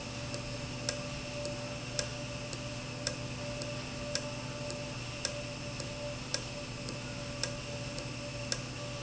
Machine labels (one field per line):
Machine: valve